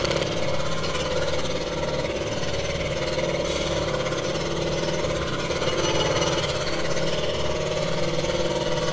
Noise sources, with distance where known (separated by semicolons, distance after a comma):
jackhammer, near